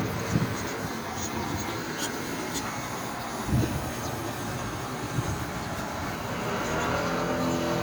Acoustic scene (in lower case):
street